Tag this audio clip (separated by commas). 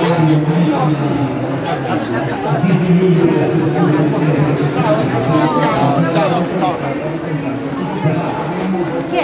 Speech